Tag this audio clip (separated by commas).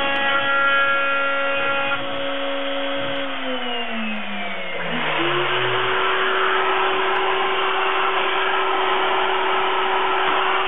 Power tool, Tools